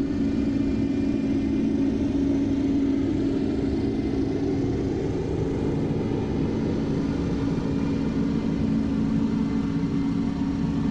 A propeller plane running